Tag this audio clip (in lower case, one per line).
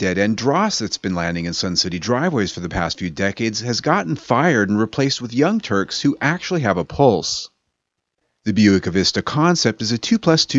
speech